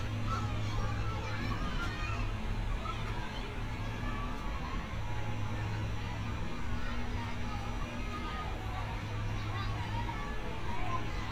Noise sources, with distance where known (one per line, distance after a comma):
unidentified human voice